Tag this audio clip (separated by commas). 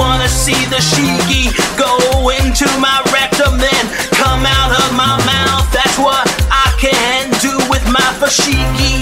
Music